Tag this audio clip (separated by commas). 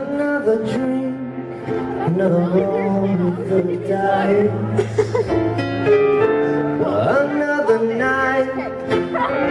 Music, Speech